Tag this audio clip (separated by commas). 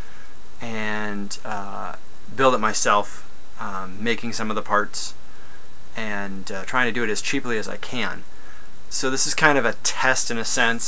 Speech